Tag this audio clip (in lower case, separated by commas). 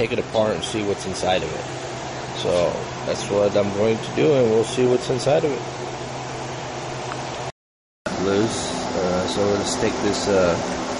speech